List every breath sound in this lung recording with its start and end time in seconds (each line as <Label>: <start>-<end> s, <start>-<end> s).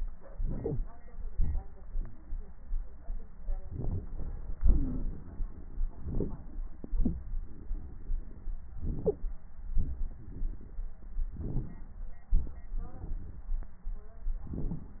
Inhalation: 0.32-0.78 s, 3.66-4.06 s, 6.00-6.40 s, 8.84-9.30 s, 11.37-11.96 s
Exhalation: 1.27-3.46 s, 4.57-5.83 s, 6.81-8.63 s, 9.77-10.84 s, 12.35-13.53 s